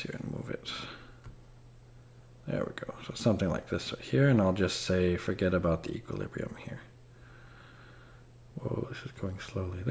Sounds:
Speech

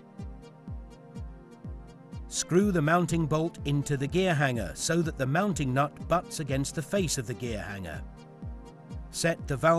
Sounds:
Speech, Music

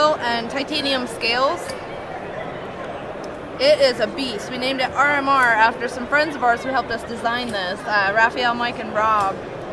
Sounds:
Speech

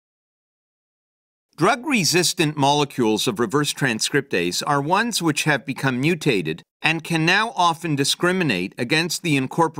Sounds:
Speech

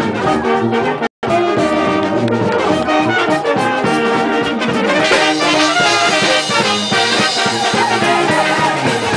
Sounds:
Musical instrument, Music, Brass instrument

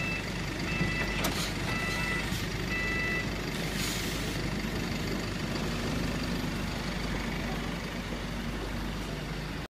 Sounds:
Vehicle

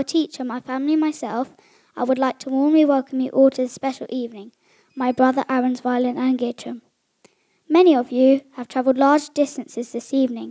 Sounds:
kid speaking, Speech

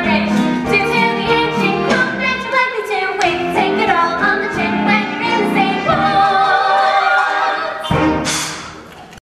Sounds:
Music

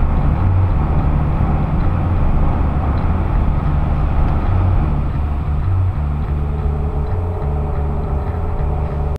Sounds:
Vehicle

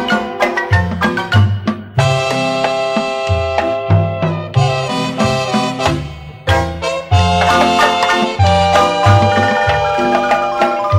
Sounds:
Marimba, Swing music, Music

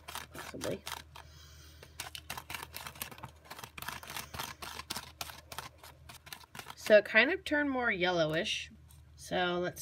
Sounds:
Speech, inside a small room

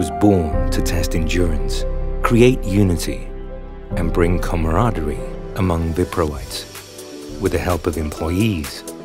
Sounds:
Music, Speech

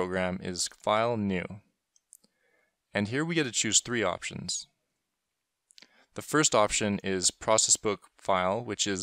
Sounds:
Speech

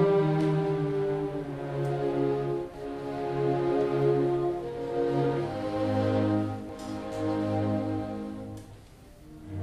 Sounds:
Music

